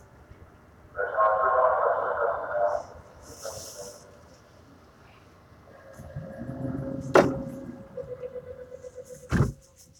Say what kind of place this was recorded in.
subway train